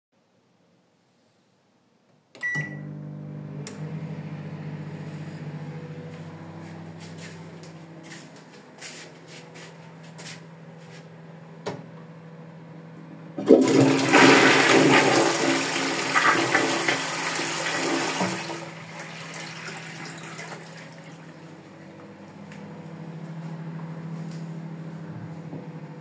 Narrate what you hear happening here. I turned on the microwave then went to flush the toilet.